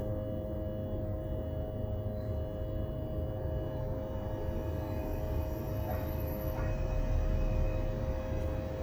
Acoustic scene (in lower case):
bus